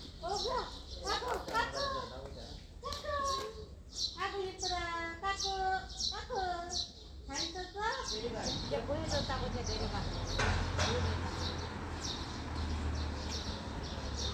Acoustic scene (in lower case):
residential area